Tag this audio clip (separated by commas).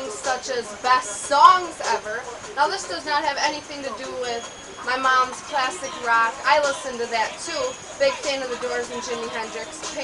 Music, Speech